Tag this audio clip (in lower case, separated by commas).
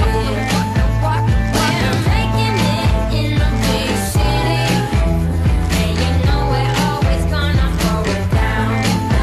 music, pop music